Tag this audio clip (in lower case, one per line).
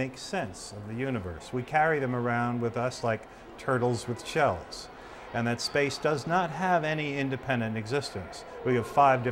speech